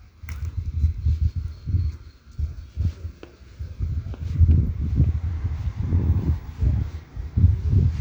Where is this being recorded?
in a residential area